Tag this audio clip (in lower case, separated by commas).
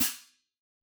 cymbal, hi-hat, percussion, musical instrument, music